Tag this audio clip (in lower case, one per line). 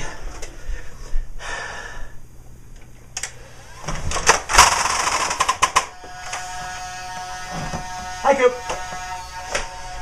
inside a large room or hall
speech